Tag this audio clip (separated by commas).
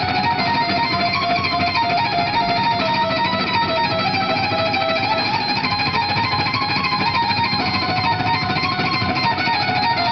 Plucked string instrument, Musical instrument, Electric guitar, Music, Guitar